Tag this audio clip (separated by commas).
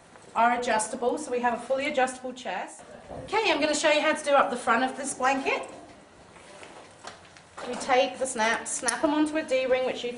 Speech